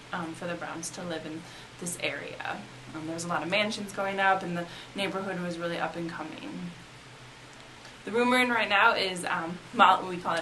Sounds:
Speech

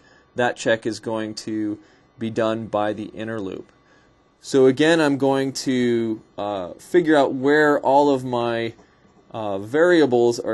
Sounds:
Speech

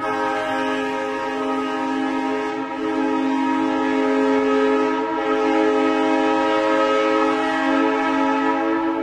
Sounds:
car horn, Train whistle

